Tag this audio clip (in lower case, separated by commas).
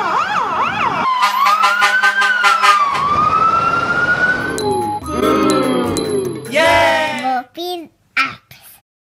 emergency vehicle, music, vehicle, speech, truck, fire truck (siren)